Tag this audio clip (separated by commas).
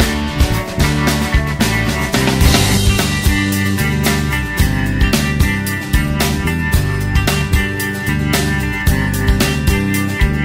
Music